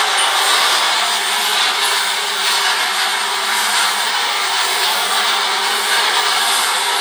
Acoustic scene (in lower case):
subway train